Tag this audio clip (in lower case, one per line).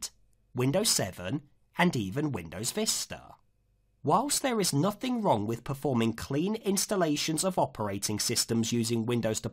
speech
narration